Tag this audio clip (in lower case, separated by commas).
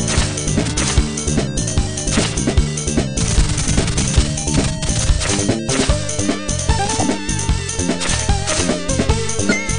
music